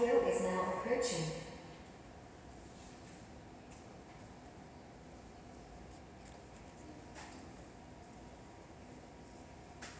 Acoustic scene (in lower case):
subway station